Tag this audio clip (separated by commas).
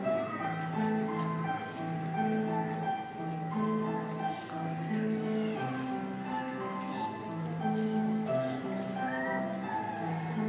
Music, Speech